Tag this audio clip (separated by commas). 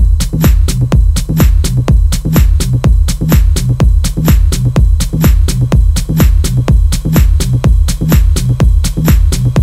Music